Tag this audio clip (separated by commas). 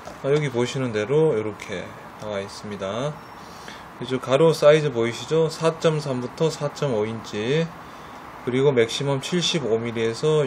Speech